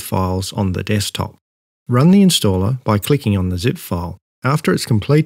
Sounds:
Speech

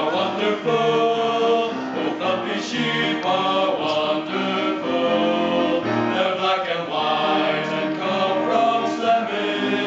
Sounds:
Music

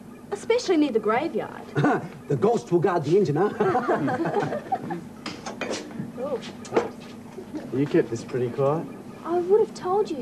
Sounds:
Laughter, Speech

